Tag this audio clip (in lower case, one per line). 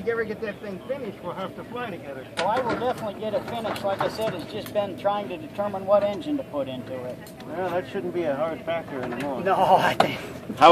speech